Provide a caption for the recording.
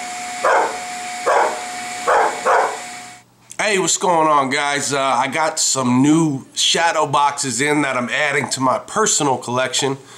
A dog barks with a humming sound in the background followed by a man speaking